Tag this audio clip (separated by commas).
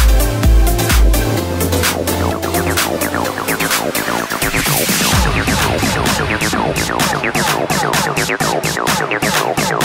Techno, Music